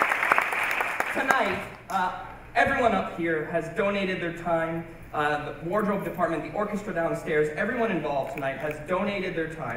Clapping and male giving a speech